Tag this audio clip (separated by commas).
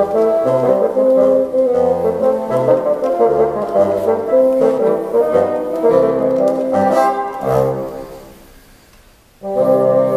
playing bassoon